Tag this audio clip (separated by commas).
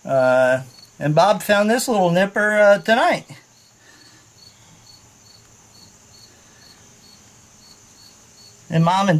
Cricket, Insect